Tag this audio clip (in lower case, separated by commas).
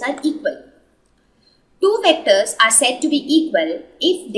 speech